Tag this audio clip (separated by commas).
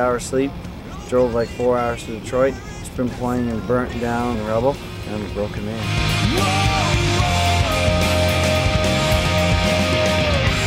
Speech, Music